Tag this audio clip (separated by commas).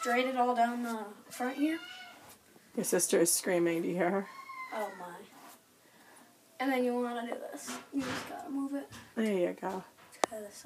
Child speech, inside a small room, Speech